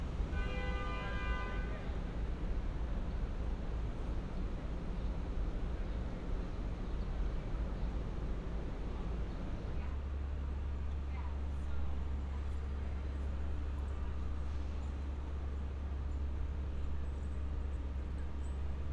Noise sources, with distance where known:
car horn; person or small group talking

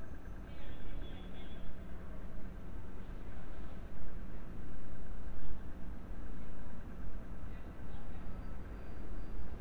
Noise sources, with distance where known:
medium-sounding engine; unidentified alert signal, far

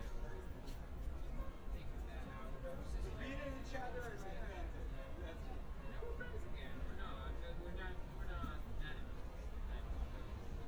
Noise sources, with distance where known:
person or small group talking, near

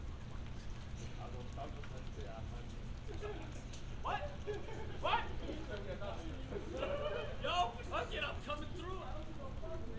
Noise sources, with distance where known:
person or small group shouting, near

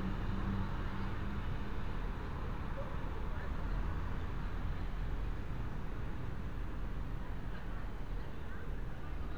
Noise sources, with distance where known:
medium-sounding engine, near; person or small group talking, far

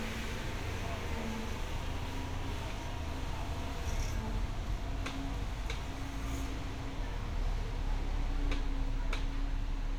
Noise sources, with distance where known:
engine of unclear size

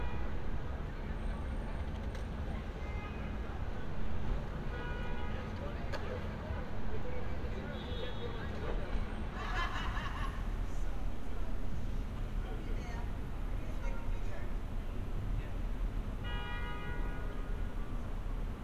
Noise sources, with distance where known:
car horn, far; person or small group talking

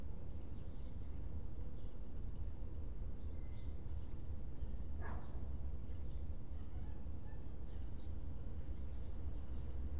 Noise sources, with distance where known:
dog barking or whining, far

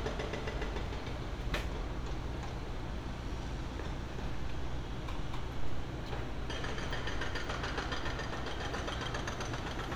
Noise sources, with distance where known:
jackhammer, near

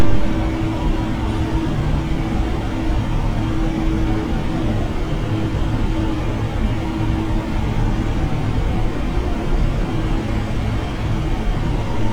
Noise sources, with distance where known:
engine of unclear size, near

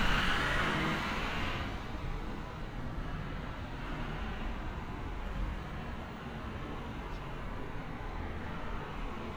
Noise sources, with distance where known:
medium-sounding engine, far

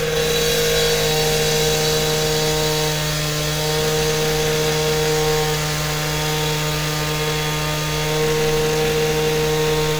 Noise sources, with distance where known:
unidentified powered saw, near

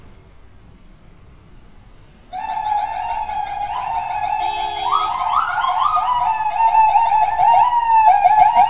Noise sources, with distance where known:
car horn, near; car alarm, near

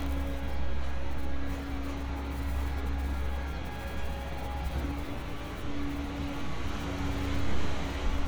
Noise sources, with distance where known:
medium-sounding engine, near; large-sounding engine

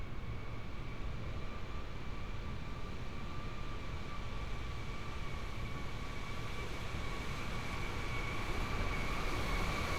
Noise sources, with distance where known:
engine of unclear size

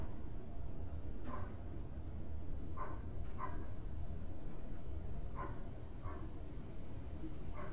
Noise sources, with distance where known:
dog barking or whining

